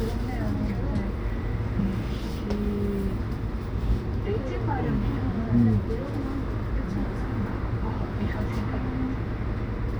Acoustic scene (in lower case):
bus